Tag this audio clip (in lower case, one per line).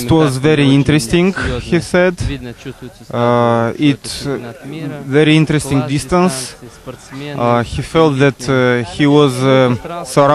speech